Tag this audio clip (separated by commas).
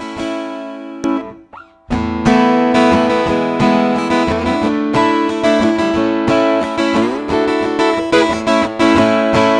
Music, Guitar, Plucked string instrument